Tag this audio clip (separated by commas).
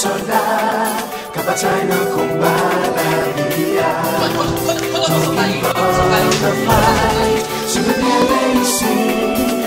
Music